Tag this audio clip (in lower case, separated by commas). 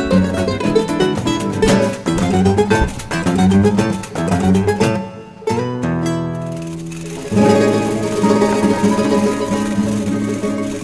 musical instrument, music, guitar, plucked string instrument